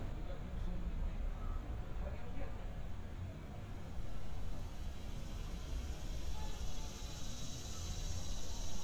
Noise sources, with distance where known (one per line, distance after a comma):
person or small group talking